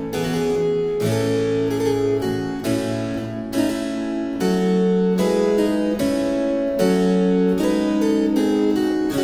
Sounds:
playing harpsichord, Harpsichord, Music

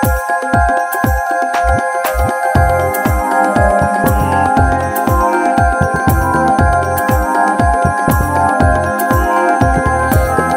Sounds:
Music

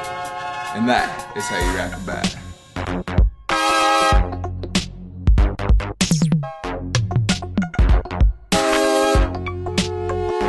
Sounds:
Drum machine, Sampler

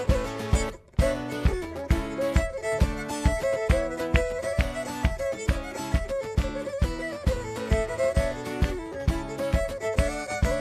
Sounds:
Violin, Music, Pizzicato, Musical instrument

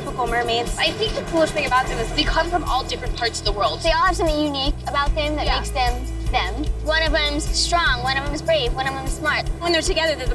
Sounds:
Speech, Music

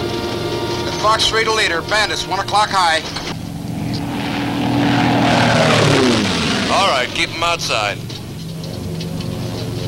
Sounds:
Speech, Music

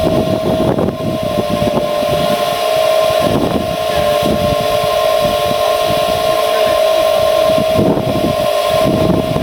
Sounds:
Vehicle

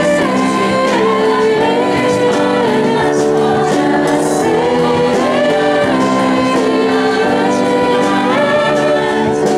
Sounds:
Music, Singing, Gospel music

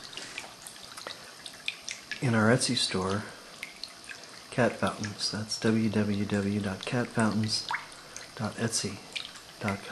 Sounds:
Speech

